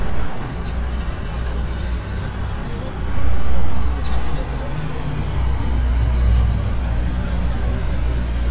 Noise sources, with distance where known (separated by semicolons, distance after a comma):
engine of unclear size, near